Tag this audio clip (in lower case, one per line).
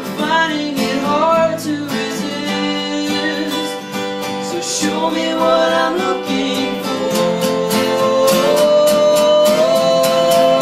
music